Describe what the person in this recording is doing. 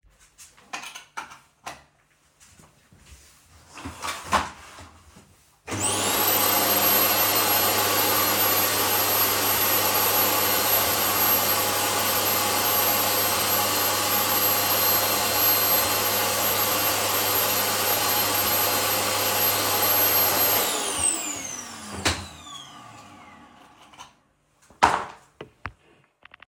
I plugged in the vaccuum, and started cleaning